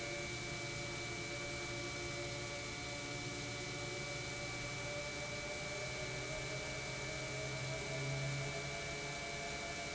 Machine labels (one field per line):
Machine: pump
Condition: normal